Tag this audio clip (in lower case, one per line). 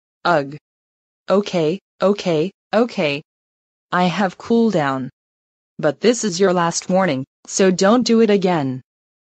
speech